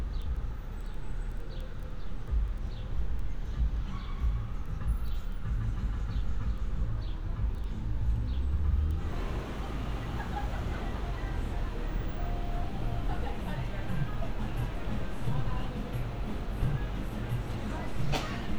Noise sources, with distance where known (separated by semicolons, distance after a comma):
music from an unclear source